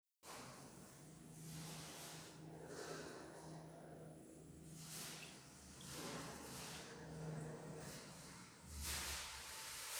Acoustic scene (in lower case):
elevator